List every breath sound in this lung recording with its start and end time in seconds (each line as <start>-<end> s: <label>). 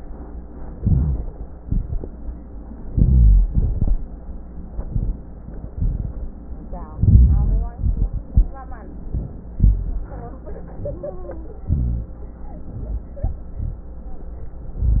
0.72-1.44 s: inhalation
0.72-1.44 s: rhonchi
1.59-2.15 s: exhalation
1.59-2.15 s: crackles
2.88-3.53 s: inhalation
2.88-3.53 s: rhonchi
3.51-4.06 s: exhalation
3.51-4.06 s: crackles
4.67-5.20 s: inhalation
4.67-5.20 s: crackles
5.67-6.21 s: exhalation
5.67-6.21 s: crackles
6.98-7.74 s: inhalation
6.98-7.74 s: rhonchi
7.76-8.29 s: exhalation
7.76-8.29 s: crackles
9.07-9.60 s: inhalation
9.60-10.13 s: exhalation
9.60-10.13 s: rhonchi
11.67-12.20 s: inhalation
11.67-12.20 s: rhonchi